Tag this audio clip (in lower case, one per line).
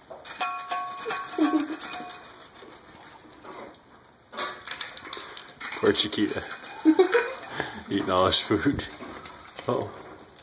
speech